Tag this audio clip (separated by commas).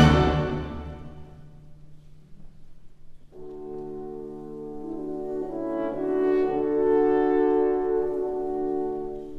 playing french horn